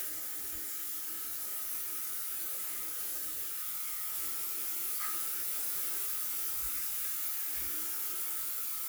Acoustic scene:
restroom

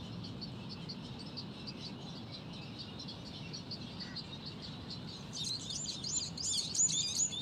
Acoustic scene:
park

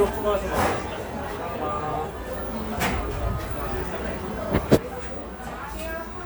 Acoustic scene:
cafe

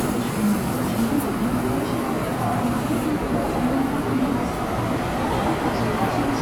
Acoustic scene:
subway station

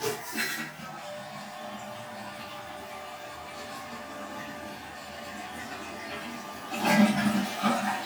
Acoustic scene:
restroom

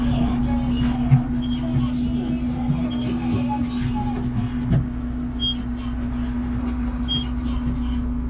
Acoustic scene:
bus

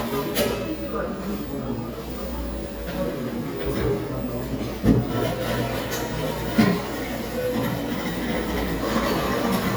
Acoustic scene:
cafe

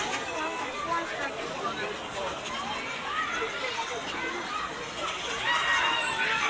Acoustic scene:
park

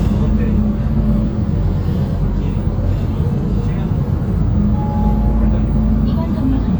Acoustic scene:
bus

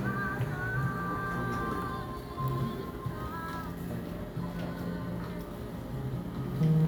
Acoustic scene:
cafe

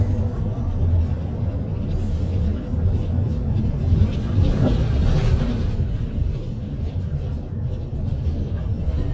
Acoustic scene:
bus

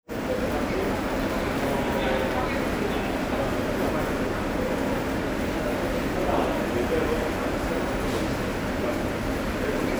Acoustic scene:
subway station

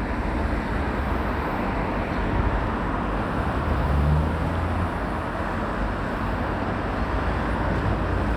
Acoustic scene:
residential area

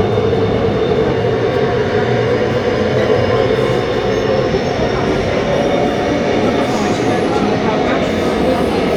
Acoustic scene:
subway train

